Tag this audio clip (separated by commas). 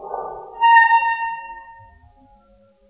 Squeak